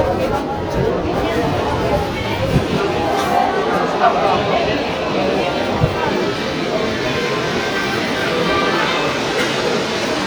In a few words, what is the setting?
subway station